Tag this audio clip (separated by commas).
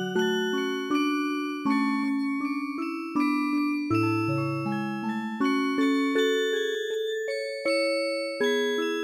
Music, Independent music